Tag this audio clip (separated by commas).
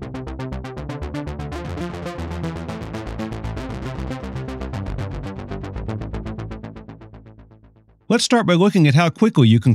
Speech, Music